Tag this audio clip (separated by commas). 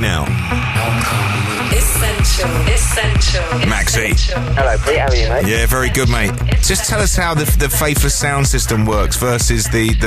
Speech, Music